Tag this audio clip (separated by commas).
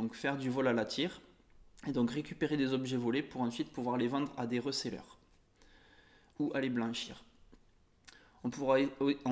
Speech